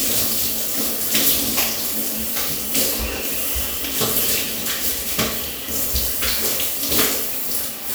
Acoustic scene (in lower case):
restroom